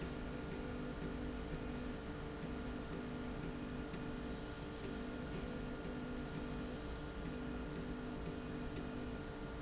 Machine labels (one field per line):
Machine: slide rail